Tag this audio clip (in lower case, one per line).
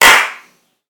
clapping
hands